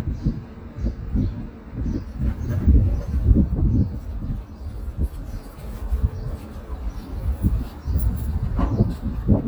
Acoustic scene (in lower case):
residential area